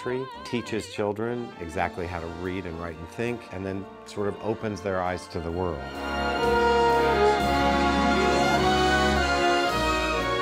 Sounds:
Speech, Music

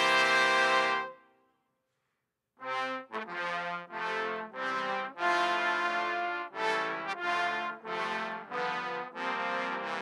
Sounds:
playing trombone

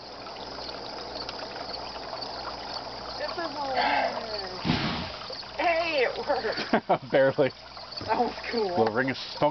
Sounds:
Explosion, Speech

